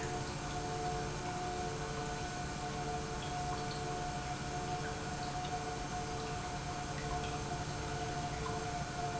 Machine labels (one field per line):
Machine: pump